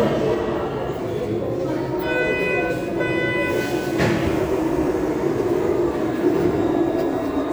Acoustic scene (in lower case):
subway station